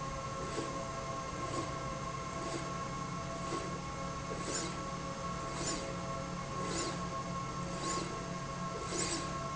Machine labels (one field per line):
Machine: slide rail